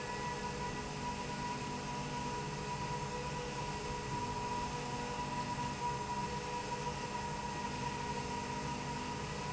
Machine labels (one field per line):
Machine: slide rail